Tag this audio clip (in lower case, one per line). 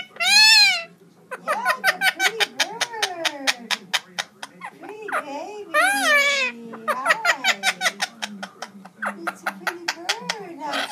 speech